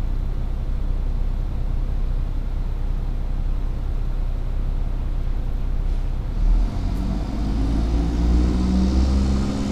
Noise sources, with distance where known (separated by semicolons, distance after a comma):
engine of unclear size, near